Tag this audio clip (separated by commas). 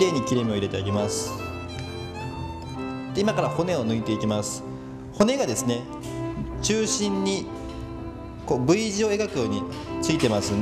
Music, Speech